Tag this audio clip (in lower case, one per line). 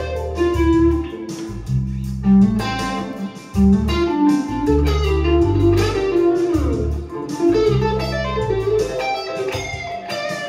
bass guitar
musical instrument
guitar
music
plucked string instrument